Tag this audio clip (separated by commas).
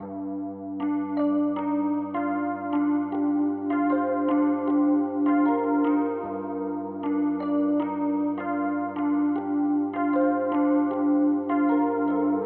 Music, Keyboard (musical), Piano, Musical instrument